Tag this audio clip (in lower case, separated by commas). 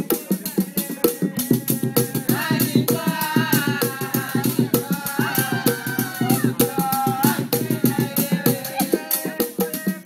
female singing, choir, male singing, music